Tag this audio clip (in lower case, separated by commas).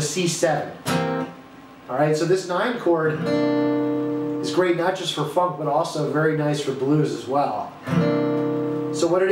acoustic guitar, guitar, strum, speech, music, musical instrument, plucked string instrument